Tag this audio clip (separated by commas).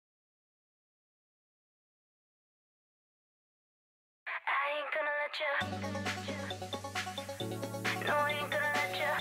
Music, Silence